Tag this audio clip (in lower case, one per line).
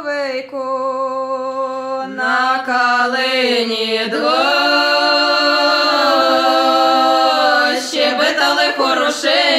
a capella